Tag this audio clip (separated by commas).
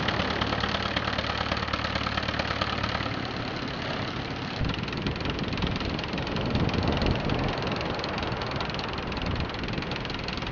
Vehicle